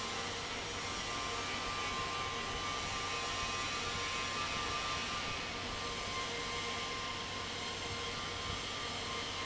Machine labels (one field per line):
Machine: fan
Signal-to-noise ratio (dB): -6 dB